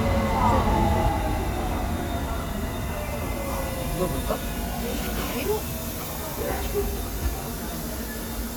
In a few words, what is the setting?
subway station